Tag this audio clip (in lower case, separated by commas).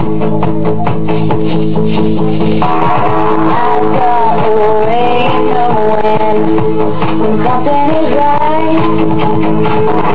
music